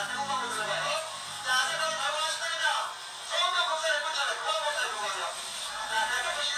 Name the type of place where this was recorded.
crowded indoor space